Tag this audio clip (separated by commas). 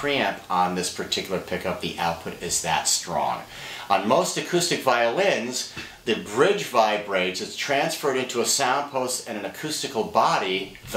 Speech